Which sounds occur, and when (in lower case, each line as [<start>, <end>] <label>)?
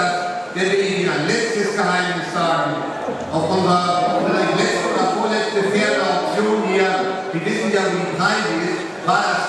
[0.00, 0.34] male speech
[0.00, 9.45] speech babble
[0.55, 2.87] male speech
[3.27, 9.45] male speech
[4.64, 5.63] horse
[6.07, 7.14] horse